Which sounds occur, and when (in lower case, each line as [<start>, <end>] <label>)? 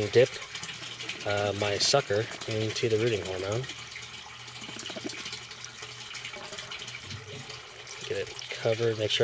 [0.00, 0.25] man speaking
[0.00, 9.23] background noise
[0.00, 9.23] pump (liquid)
[1.21, 3.69] man speaking
[7.99, 8.28] man speaking
[8.54, 9.23] man speaking